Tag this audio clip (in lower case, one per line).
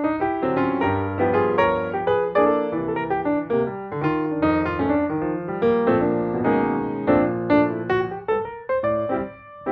music